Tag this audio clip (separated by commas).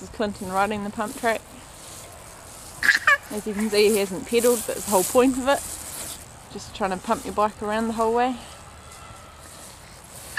Speech